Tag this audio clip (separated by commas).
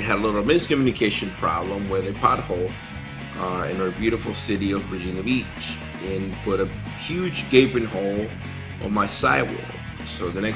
Speech, Music